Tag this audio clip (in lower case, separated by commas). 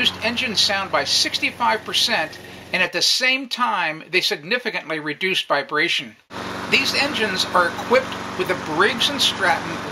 speech